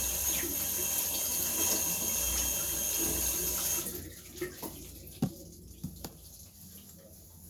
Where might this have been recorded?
in a restroom